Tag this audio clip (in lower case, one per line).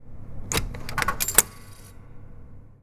home sounds
coin (dropping)